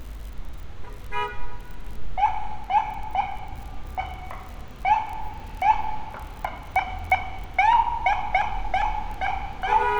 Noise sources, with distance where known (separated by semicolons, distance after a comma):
car horn, near